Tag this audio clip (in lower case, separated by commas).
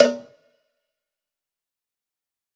cowbell, bell